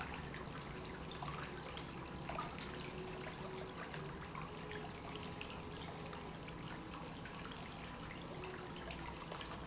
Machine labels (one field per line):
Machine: pump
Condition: normal